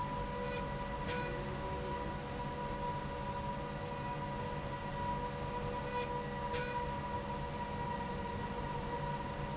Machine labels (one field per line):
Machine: slide rail